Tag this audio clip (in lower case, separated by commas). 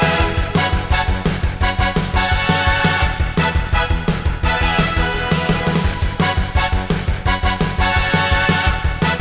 music, video game music